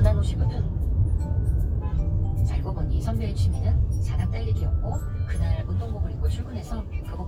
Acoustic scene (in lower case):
car